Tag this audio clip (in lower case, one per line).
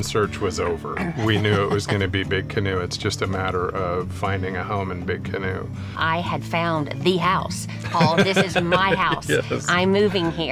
music
speech